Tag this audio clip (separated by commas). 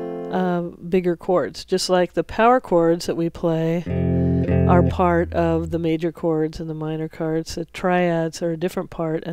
Plucked string instrument, Musical instrument, Speech, Guitar, Strum, Music